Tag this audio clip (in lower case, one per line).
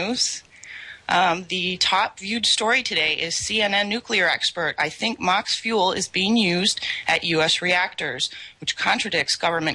speech
radio